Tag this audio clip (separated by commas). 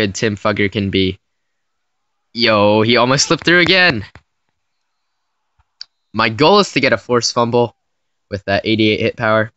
Speech